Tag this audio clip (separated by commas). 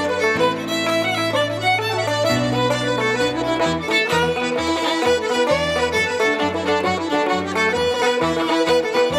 Musical instrument, Music, Violin